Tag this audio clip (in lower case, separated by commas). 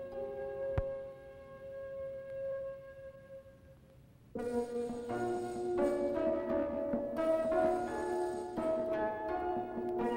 music